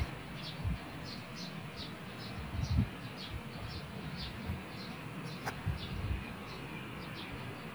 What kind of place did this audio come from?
park